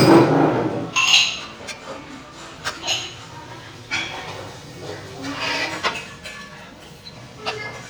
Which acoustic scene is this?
restaurant